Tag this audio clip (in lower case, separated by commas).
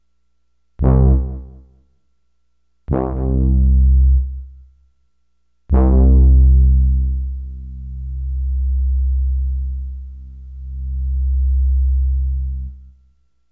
keyboard (musical), music, musical instrument